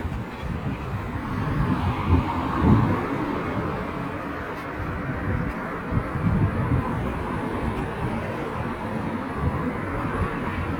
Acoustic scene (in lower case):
residential area